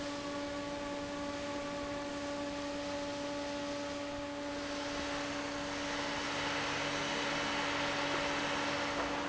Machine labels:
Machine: fan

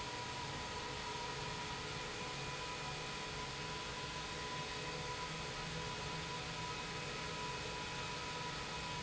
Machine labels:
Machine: pump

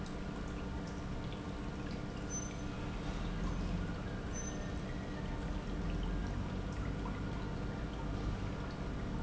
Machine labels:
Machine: pump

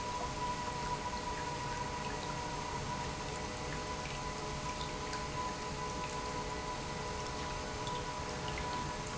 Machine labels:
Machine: pump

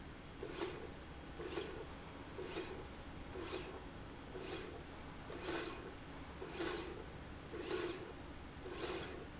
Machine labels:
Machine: slide rail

